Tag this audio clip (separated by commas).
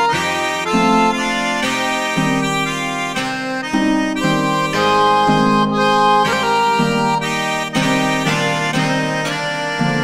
Music